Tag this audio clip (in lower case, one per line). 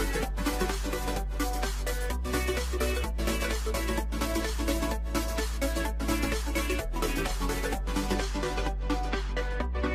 music